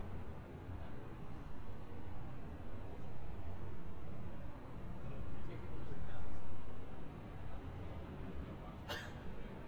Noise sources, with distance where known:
person or small group talking, far

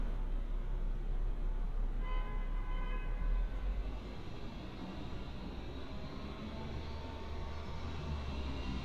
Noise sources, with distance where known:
large-sounding engine, far; car horn, far

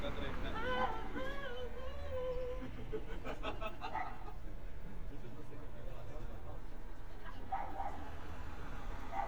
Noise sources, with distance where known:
music from an unclear source, near; person or small group talking, near; dog barking or whining

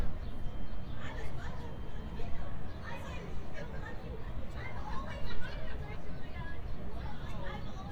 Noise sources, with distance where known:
person or small group talking, near

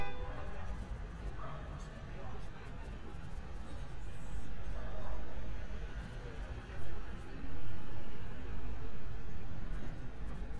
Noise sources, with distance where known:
car horn

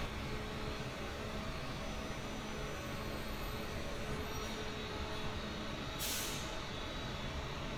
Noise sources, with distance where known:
large-sounding engine, far

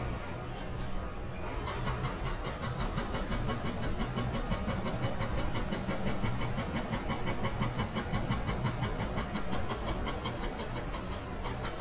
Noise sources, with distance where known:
unidentified impact machinery

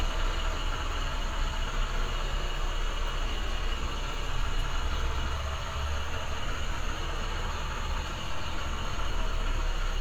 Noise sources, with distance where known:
large-sounding engine, near

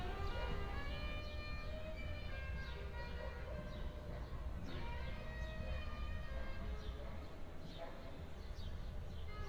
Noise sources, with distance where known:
music from a fixed source, far

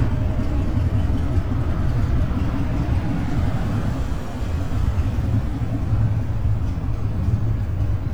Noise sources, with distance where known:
medium-sounding engine, near

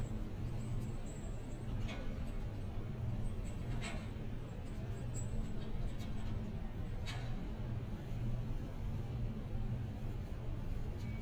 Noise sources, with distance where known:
background noise

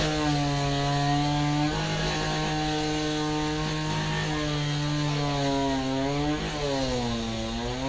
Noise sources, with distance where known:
chainsaw

